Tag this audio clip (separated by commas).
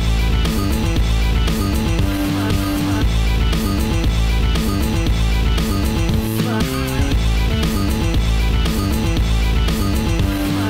Music